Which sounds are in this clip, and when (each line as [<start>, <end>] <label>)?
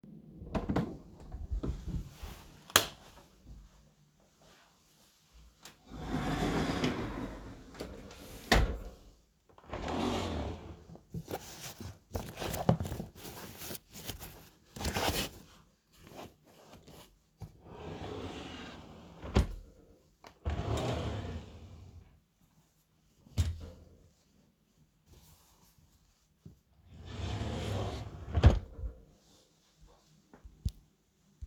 [0.26, 2.45] door
[2.57, 3.07] light switch
[5.80, 10.95] wardrobe or drawer
[17.55, 21.70] wardrobe or drawer
[27.06, 28.95] wardrobe or drawer